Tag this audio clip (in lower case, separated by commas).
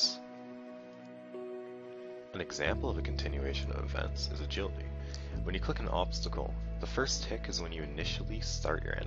speech, music